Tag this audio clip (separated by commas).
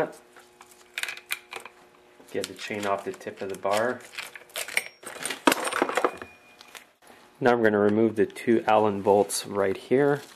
Speech